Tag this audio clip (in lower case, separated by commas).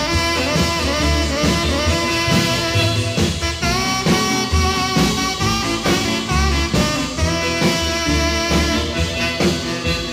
heavy metal, music